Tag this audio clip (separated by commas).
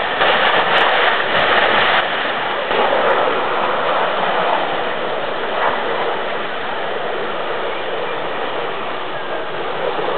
Eruption